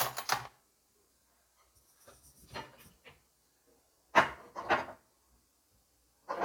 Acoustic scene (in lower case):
kitchen